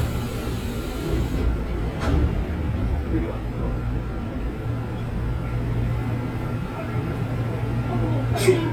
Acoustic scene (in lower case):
subway train